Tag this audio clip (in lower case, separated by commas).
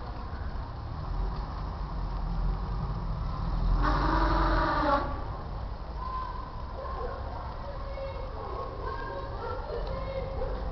speech